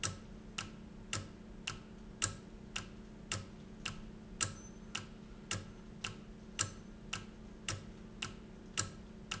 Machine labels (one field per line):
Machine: valve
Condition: normal